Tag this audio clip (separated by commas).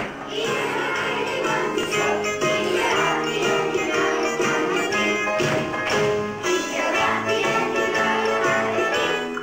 Happy music, Music